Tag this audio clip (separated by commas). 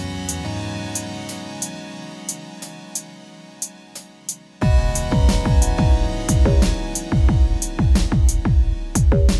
Electronica, Music